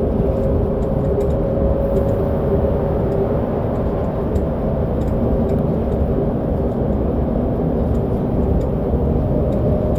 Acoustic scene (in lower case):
bus